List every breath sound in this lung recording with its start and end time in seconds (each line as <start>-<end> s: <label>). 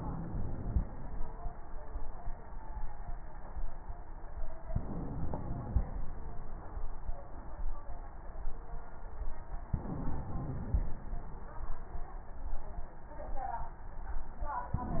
0.00-0.80 s: inhalation
4.73-5.85 s: inhalation
9.75-10.87 s: inhalation
14.75-15.00 s: inhalation